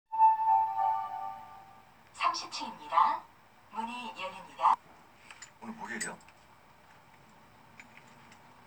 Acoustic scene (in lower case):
elevator